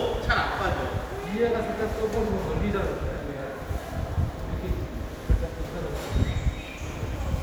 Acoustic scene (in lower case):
subway station